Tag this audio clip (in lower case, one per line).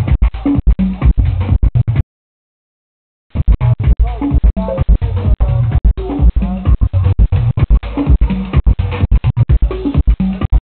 music
speech
electronic music
house music